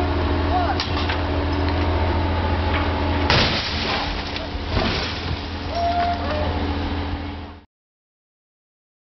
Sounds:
vehicle

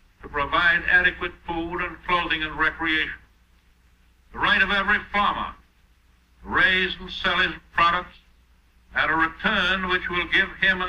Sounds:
male speech
monologue
speech

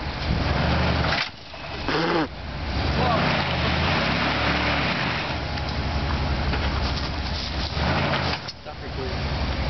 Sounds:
speech
car
reversing beeps
vehicle
air brake

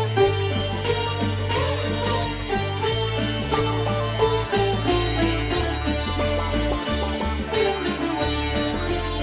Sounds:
playing sitar

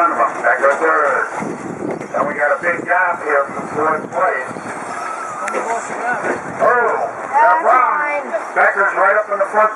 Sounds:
speech

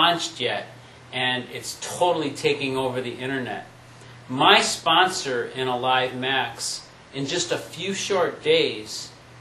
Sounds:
speech

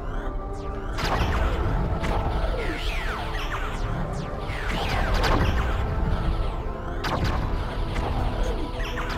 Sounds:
music

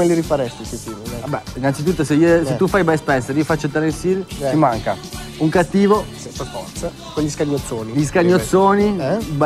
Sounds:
speech
music

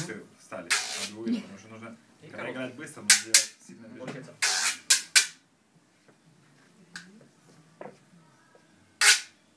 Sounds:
playing guiro

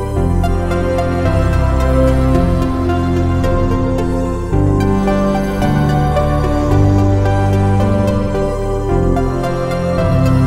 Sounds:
new-age music

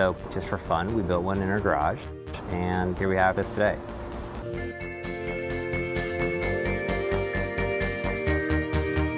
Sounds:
music
speech

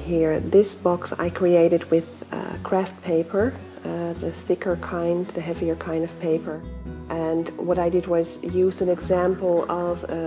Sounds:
speech
music

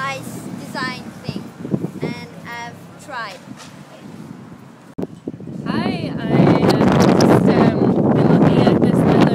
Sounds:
speech

